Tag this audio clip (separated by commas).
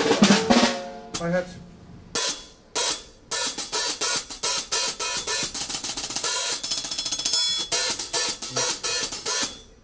Hi-hat, Cymbal